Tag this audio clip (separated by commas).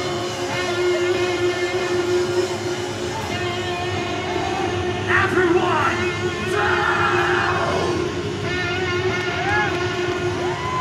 Music, Speech